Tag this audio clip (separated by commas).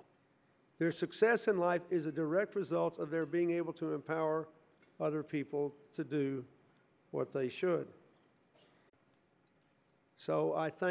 man speaking, monologue, Speech